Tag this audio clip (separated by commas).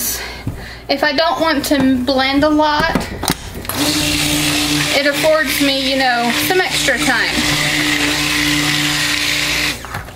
Speech, Blender, inside a small room